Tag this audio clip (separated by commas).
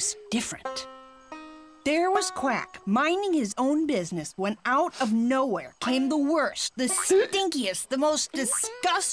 Music, Speech